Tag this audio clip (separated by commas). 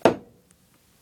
Tap, Hammer, Tools